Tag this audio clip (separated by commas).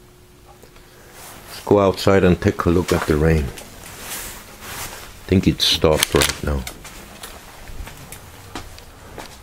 Speech